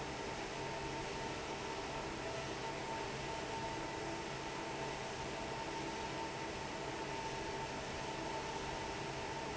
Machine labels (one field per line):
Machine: fan